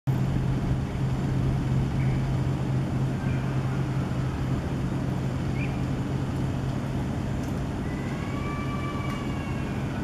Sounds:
bird, bird call

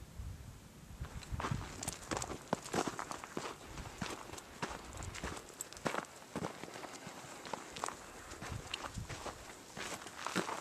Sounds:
footsteps

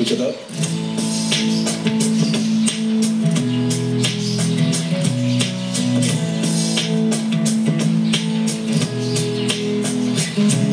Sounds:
music

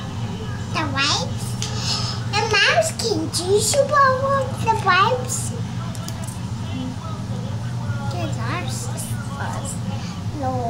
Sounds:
speech, inside a small room, child speech

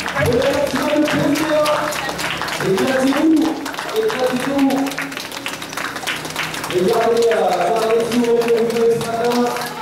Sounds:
speech, run, outside, urban or man-made

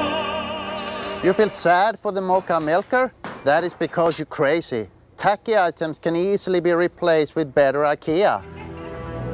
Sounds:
speech, music

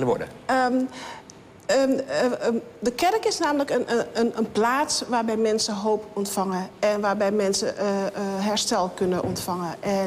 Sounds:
speech

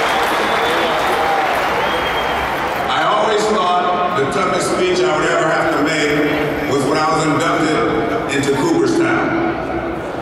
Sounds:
man speaking, speech, monologue

